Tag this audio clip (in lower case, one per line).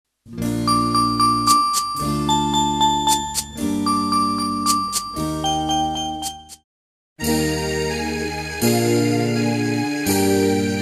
music